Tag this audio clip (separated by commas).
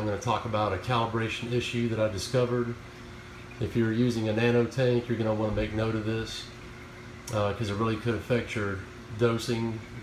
Speech